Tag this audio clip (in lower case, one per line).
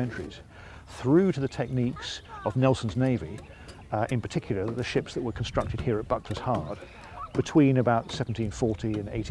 speech